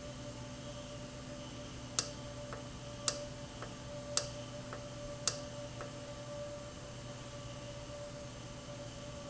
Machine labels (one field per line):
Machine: valve